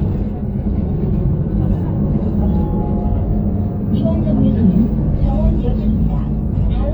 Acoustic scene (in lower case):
bus